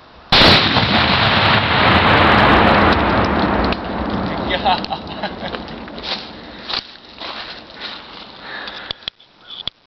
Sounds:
explosion

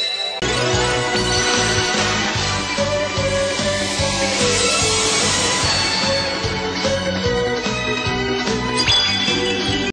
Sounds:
music

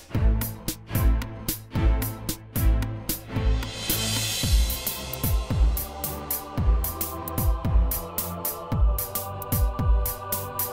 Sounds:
music

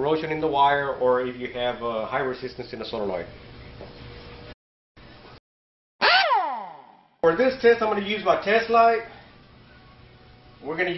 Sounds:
speech, inside a small room

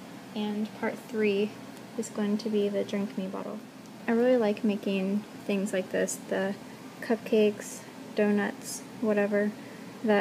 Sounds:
speech

